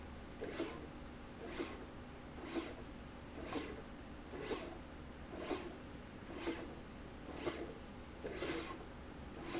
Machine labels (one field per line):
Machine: slide rail